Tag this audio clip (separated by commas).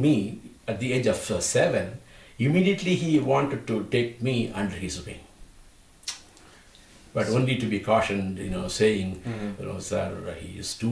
inside a small room, Speech